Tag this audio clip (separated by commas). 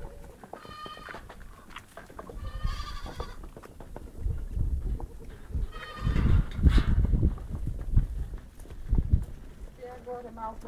Sheep, Speech